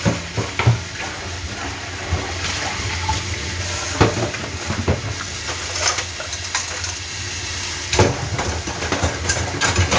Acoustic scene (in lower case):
kitchen